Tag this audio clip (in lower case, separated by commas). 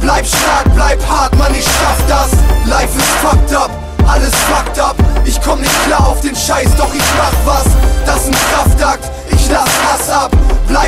music, soundtrack music